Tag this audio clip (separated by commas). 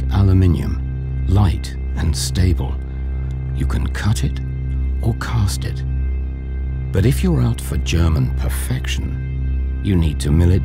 Speech, Music